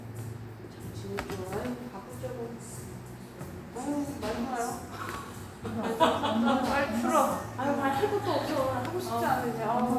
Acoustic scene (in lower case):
cafe